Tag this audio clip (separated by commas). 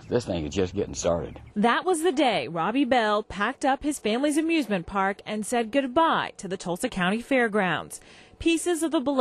Speech